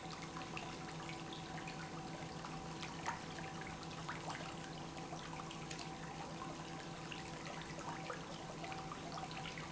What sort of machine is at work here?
pump